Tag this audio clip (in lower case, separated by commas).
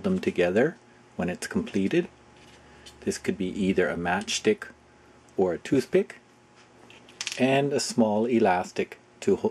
speech